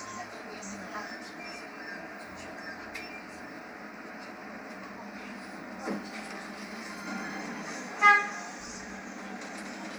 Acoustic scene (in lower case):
bus